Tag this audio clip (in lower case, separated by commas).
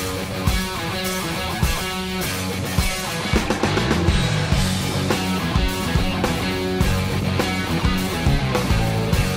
music